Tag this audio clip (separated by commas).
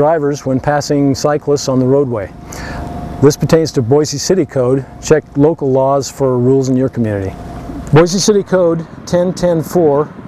Vehicle, Speech